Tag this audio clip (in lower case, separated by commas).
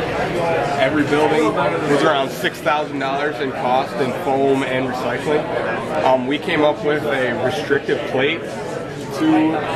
speech